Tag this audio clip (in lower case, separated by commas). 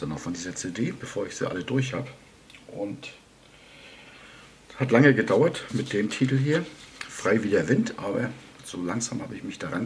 speech